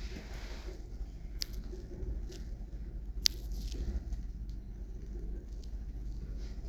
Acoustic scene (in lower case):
elevator